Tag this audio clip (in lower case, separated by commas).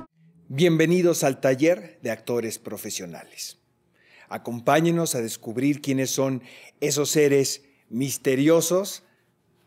speech